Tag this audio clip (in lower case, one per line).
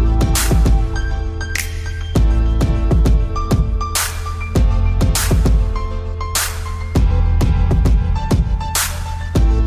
music